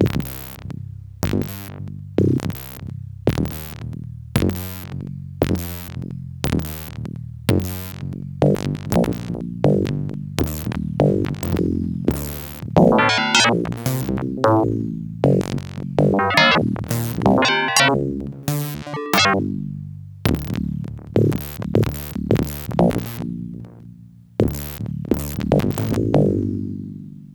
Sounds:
keyboard (musical), music, musical instrument

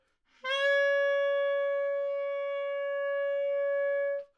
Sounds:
music, wind instrument, musical instrument

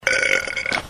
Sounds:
burping

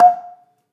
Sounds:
percussion, mallet percussion, marimba, music, musical instrument

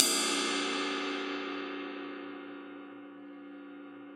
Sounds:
crash cymbal, musical instrument, cymbal, music, percussion

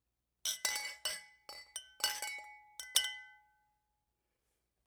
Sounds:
glass, clink

